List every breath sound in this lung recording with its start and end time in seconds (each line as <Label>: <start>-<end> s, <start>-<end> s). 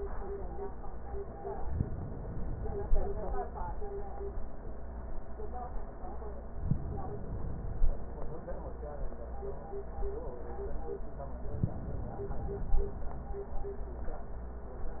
Inhalation: 1.68-3.27 s, 6.59-8.10 s, 11.55-13.06 s